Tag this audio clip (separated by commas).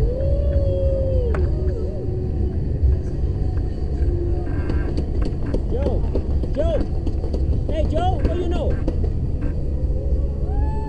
Speech